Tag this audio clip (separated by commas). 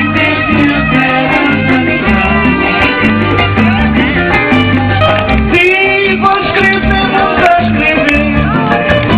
Music, Female singing, Speech